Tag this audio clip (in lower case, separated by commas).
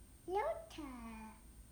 speech, human voice, kid speaking